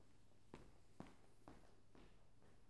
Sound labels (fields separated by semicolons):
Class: footsteps; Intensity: medium